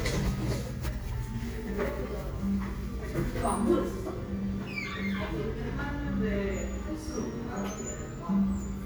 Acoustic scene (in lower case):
cafe